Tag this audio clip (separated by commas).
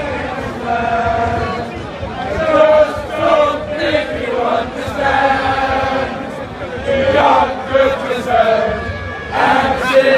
Male singing, Choir